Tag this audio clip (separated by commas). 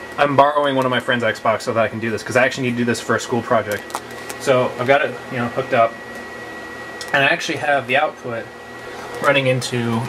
Speech